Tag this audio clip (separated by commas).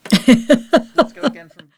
Giggle, Laughter, Human voice